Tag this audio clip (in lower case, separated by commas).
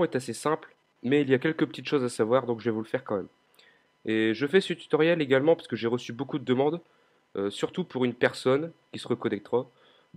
speech